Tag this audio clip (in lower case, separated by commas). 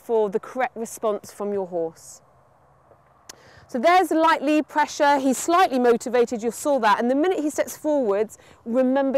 horse neighing